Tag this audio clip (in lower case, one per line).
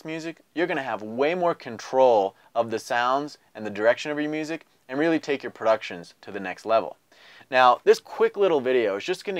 speech